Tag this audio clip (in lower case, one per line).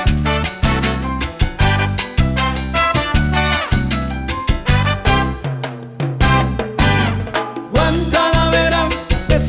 music